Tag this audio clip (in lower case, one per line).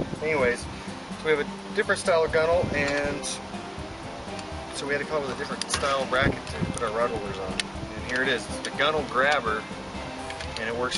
speech
music